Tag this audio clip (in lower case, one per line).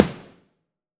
snare drum
music
musical instrument
percussion
drum